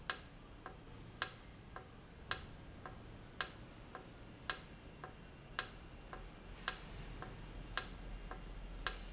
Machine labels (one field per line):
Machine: valve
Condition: normal